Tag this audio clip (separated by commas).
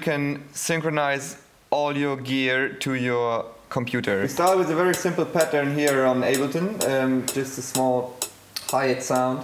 Speech, Tick-tock